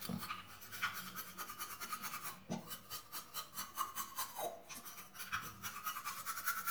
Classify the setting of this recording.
restroom